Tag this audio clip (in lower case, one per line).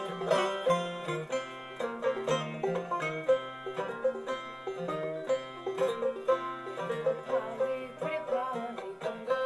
music